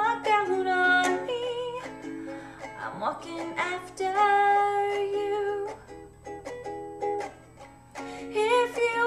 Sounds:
music
musical instrument
acoustic guitar
guitar
ukulele
plucked string instrument

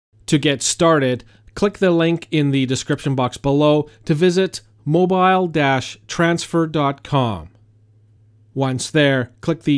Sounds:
speech

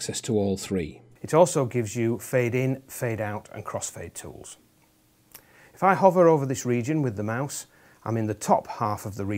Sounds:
speech

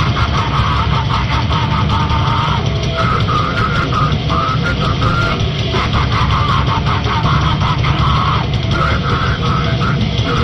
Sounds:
music

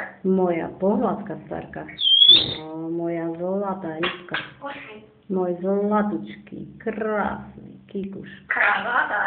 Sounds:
pets
speech
bird

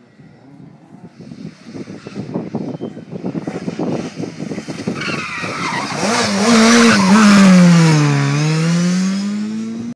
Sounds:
motor vehicle (road)
car
vehicle
car passing by

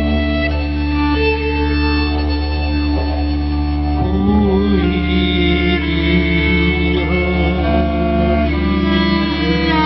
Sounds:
string section

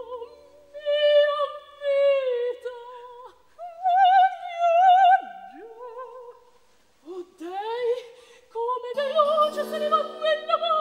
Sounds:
music

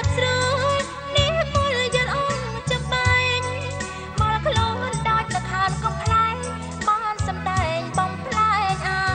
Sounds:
music

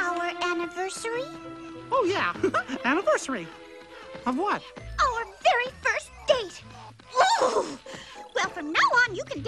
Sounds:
music
speech

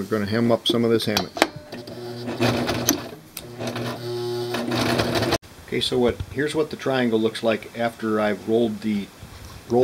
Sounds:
speech

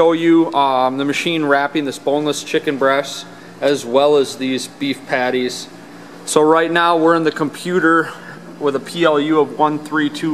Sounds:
speech

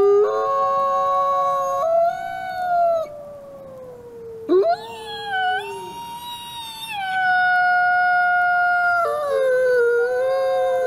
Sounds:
coyote howling

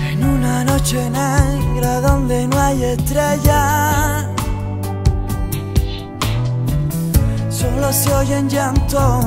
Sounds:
music

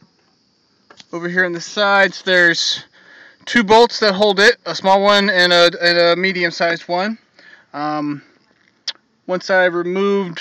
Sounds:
speech

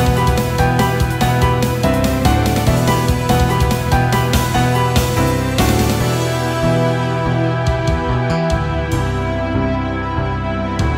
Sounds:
music
background music

